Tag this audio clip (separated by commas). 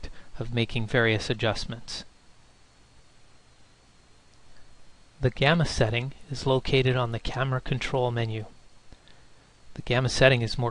Speech